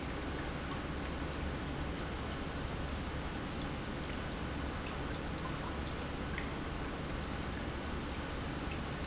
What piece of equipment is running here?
pump